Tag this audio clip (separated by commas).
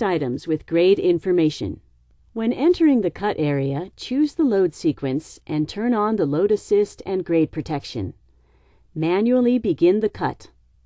Speech